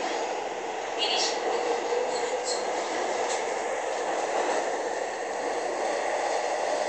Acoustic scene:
subway train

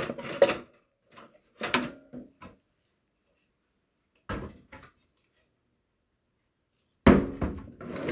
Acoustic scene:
kitchen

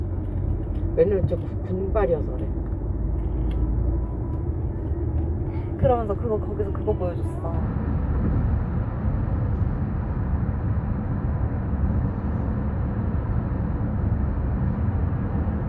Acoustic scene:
car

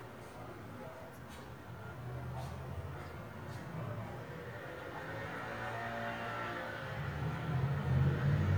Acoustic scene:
residential area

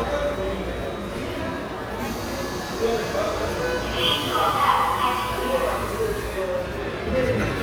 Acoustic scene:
subway station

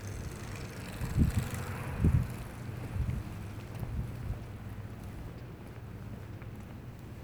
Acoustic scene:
residential area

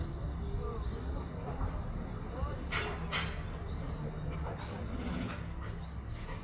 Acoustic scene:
residential area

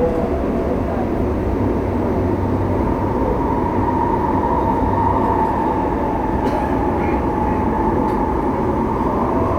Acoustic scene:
subway train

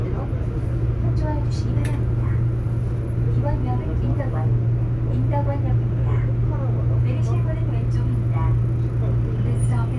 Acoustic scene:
subway train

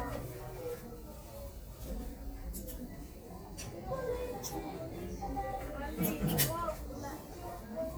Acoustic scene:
crowded indoor space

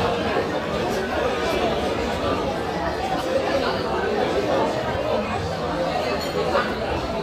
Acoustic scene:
crowded indoor space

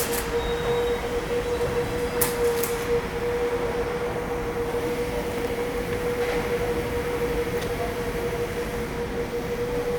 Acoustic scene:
subway station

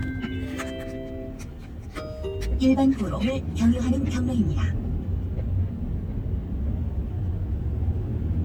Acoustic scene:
car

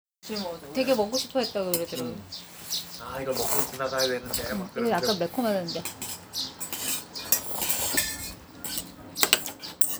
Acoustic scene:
restaurant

